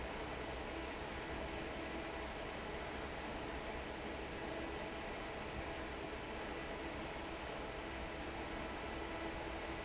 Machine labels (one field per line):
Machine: fan